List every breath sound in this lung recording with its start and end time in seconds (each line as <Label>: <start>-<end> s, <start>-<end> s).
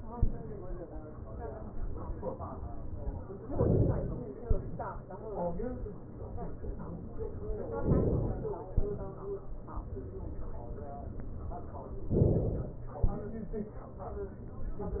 Inhalation: 3.58-4.22 s, 7.80-8.67 s, 12.11-12.89 s
Exhalation: 4.49-5.50 s, 8.67-9.54 s, 12.89-13.62 s